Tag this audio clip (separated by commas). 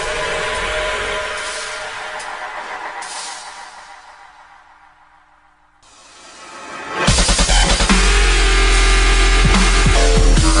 Dance music, Theme music, Disco, Music